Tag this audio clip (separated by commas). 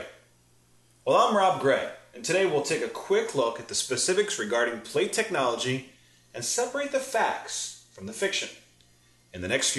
Speech